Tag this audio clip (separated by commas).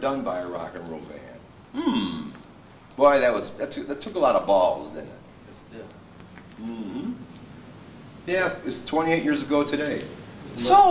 inside a large room or hall, Speech